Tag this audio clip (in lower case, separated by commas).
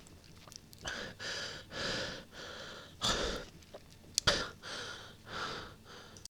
human voice